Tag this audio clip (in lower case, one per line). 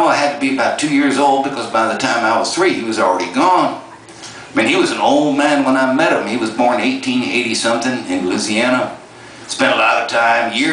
speech